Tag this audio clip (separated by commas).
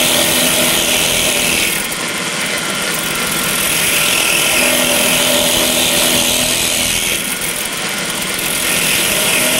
Drill